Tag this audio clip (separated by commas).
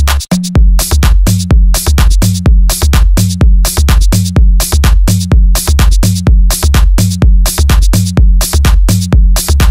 House music, Music, Dance music